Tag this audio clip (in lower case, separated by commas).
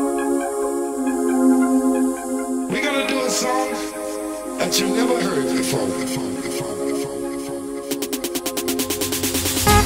house music, electronica, electronic dance music, music, speech